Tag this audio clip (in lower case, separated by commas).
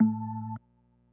organ, music, keyboard (musical), musical instrument